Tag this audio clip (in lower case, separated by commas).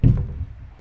domestic sounds, cupboard open or close